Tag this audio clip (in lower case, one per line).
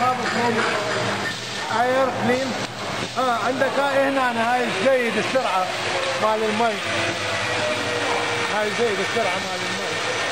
speech